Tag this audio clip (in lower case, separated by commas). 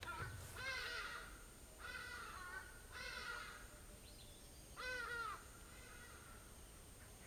wild animals, animal, bird call, bird